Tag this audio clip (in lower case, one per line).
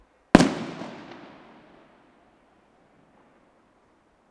explosion
fireworks